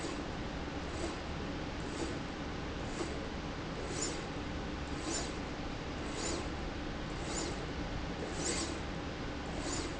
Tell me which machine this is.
slide rail